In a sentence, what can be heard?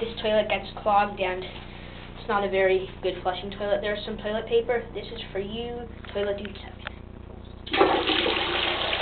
A woman speaking followed by a toilet being flushed